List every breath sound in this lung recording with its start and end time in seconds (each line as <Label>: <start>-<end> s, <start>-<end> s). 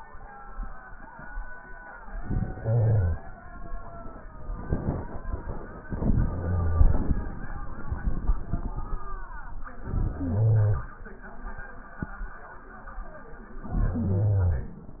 Inhalation: 2.02-3.26 s, 5.85-7.33 s, 9.71-10.96 s, 13.49-14.79 s
Crackles: 5.85-7.33 s